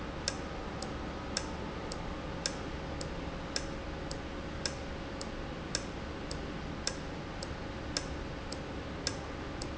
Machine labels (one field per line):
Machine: valve